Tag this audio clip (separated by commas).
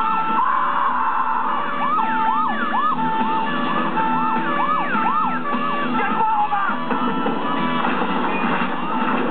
Music, Speech